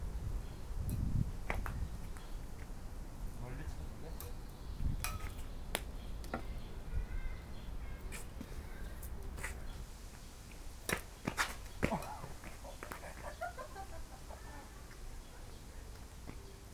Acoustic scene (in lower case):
park